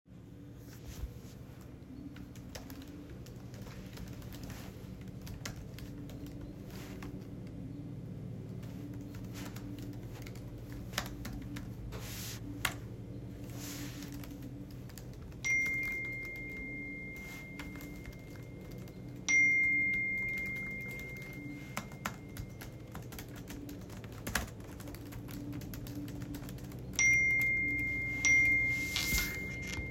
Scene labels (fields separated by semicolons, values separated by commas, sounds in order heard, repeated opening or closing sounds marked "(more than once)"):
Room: bedroom; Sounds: keyboard typing, phone ringing